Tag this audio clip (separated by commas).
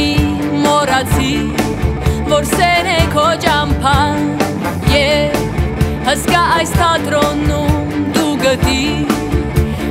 Music